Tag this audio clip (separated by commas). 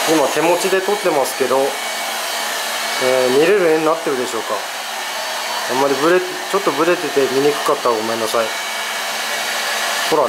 vacuum cleaner cleaning floors